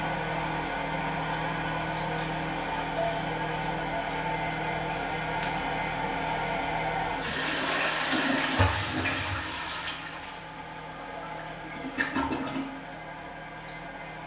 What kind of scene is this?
restroom